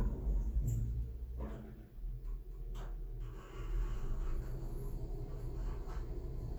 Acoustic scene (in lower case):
elevator